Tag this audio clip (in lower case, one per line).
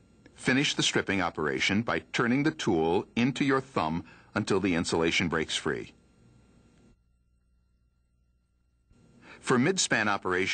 speech